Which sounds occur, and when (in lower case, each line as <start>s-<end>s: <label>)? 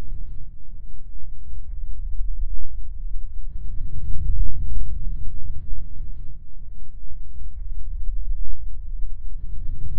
0.0s-9.9s: music